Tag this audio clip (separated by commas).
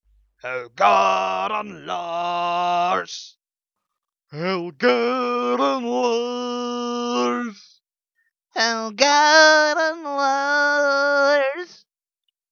Human voice, Singing